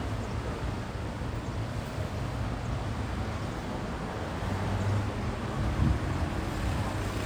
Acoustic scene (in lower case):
street